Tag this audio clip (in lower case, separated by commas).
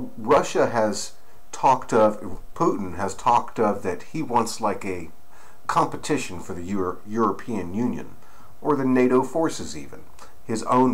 speech